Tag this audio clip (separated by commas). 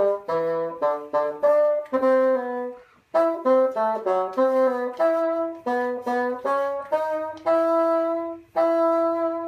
playing bassoon